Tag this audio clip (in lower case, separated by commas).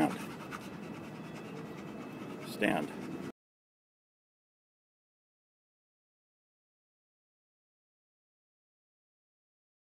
speech